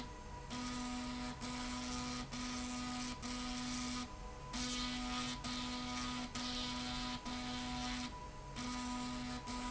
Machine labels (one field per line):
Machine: slide rail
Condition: abnormal